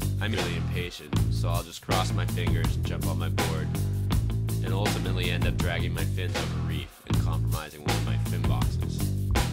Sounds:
speech
music

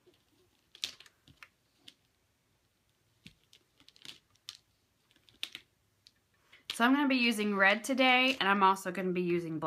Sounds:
speech

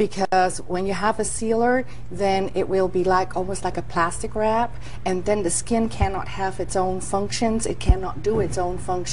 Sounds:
female speech
speech

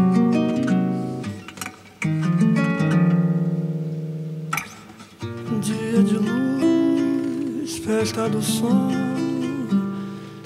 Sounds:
plucked string instrument
guitar
strum
musical instrument
music
acoustic guitar

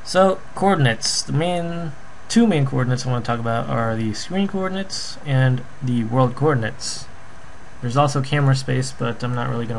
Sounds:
speech

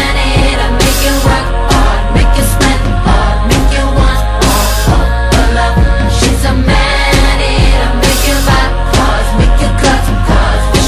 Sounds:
music

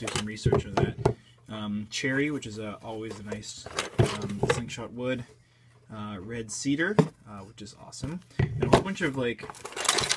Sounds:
speech

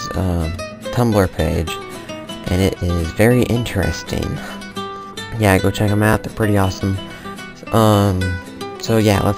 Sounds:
speech
music

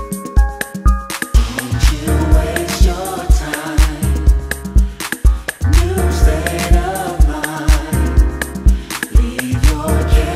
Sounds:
music

